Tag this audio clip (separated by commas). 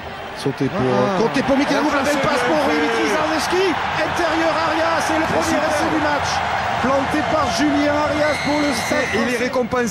Speech